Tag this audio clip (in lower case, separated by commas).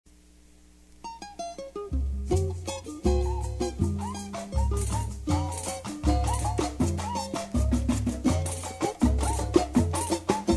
music, drum kit, drum, musical instrument